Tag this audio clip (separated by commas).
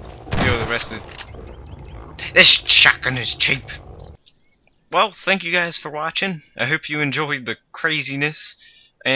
Fusillade